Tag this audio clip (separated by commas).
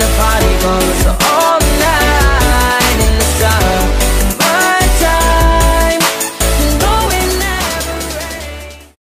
Singing, Music, Musical instrument